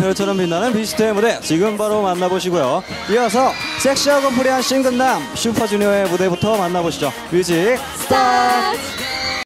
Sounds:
Speech, Music of Asia, Music, Singing, Pop music

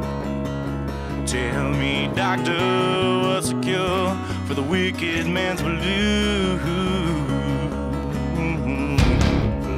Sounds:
Music

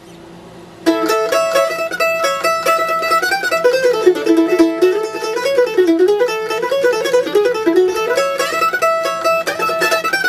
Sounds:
Music, Mandolin

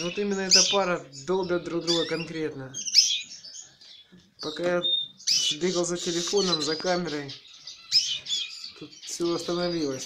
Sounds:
canary calling

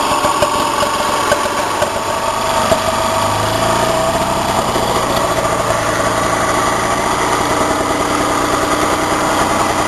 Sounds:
Vehicle

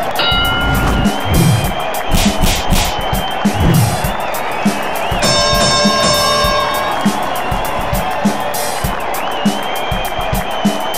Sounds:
Music

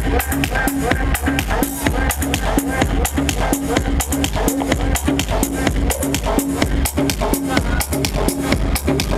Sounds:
Techno, Music

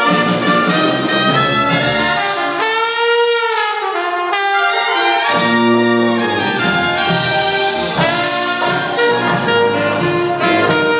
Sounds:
Music

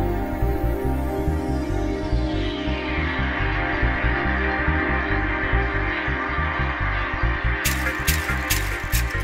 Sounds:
Music

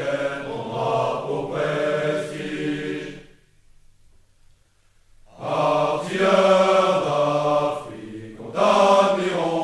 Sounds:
Mantra, Singing

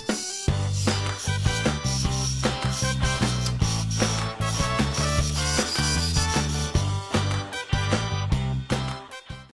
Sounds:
Music

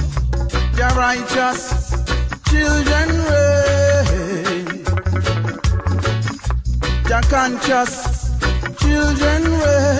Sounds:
Male singing, Music

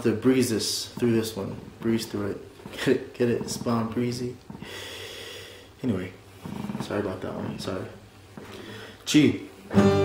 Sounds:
Musical instrument, Speech, Strum, Plucked string instrument, Guitar, Acoustic guitar, Music

